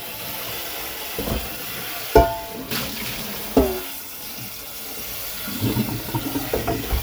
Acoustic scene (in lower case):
kitchen